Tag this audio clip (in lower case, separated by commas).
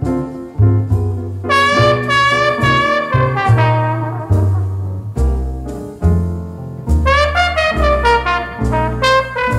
brass instrument, music, trumpet, trombone, jazz, musical instrument, saxophone